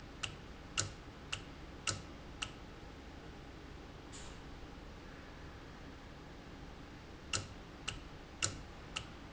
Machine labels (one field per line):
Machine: valve